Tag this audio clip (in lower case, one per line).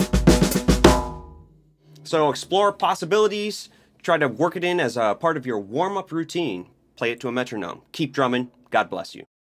musical instrument
bass drum
snare drum
drum
music
speech
drum kit